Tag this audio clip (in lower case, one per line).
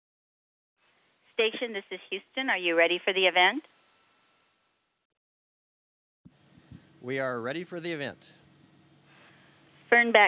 speech